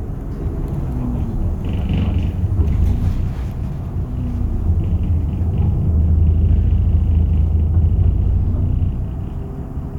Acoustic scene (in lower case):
bus